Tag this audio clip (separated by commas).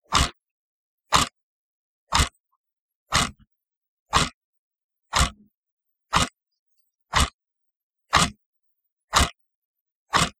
Mechanisms, Clock